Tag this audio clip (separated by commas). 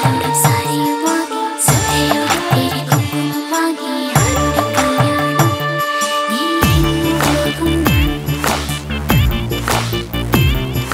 Music